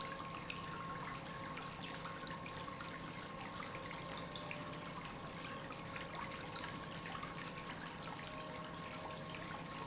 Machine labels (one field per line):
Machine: pump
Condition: normal